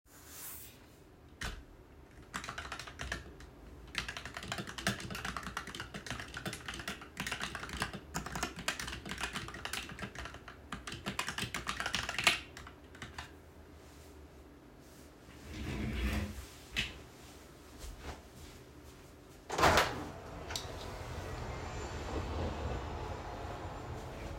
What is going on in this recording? I was typing on my keyboard at my desk, then I stood up, moved my chair back, and went to go open the window.